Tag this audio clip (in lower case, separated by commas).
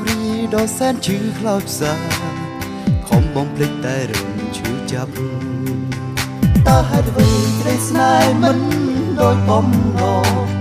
music, singing